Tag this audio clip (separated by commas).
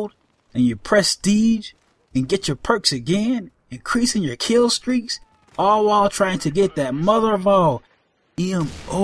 Narration, Speech